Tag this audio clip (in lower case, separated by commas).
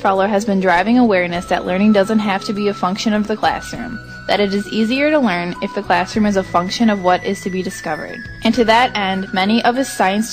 music, speech